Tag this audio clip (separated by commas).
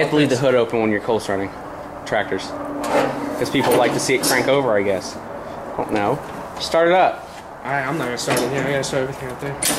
Speech